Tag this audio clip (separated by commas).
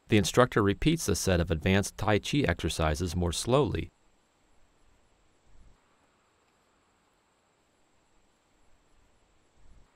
Speech, Silence